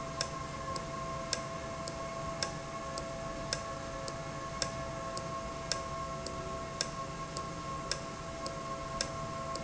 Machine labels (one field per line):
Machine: valve